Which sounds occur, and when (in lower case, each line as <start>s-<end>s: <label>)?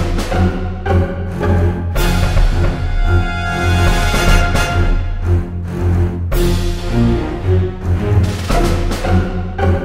0.0s-9.8s: music